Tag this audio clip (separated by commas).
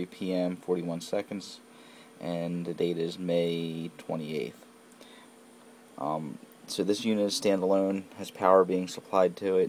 Speech